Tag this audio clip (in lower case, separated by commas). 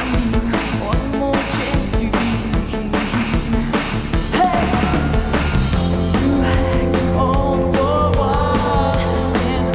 music